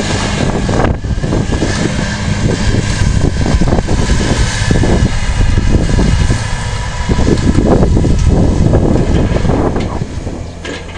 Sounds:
outside, rural or natural, Vehicle

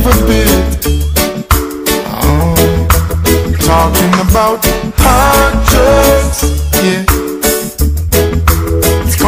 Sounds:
Music

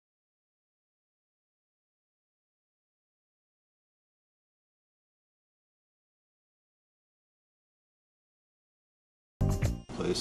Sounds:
Speech, Music

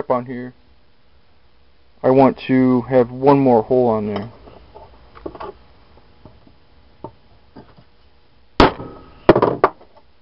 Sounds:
Tools, Speech

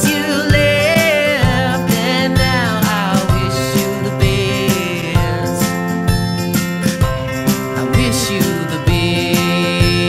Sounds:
Music

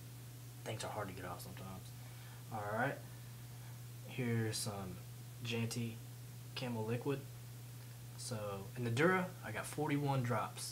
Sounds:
Speech

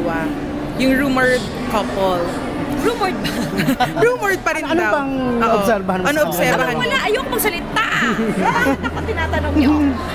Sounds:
inside a public space, Speech

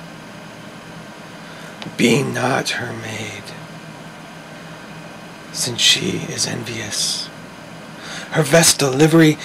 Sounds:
Speech

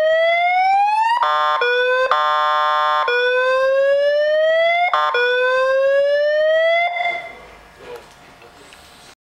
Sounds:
Speech

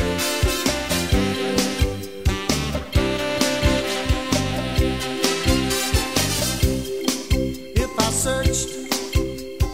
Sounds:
Music

